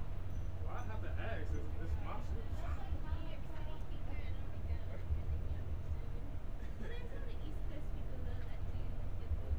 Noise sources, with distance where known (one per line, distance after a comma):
person or small group talking